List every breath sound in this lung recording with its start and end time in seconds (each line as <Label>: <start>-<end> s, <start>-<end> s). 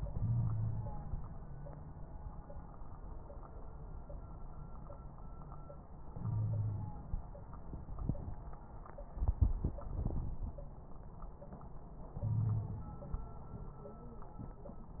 Inhalation: 0.05-1.35 s, 6.12-7.19 s, 9.85-10.58 s, 12.19-12.98 s
Wheeze: 0.15-0.92 s, 6.24-6.96 s, 12.23-12.88 s
Crackles: 9.85-10.58 s